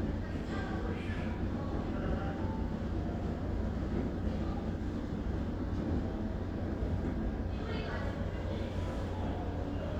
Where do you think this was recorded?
in a crowded indoor space